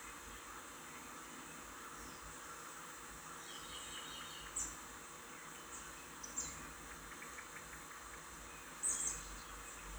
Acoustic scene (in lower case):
park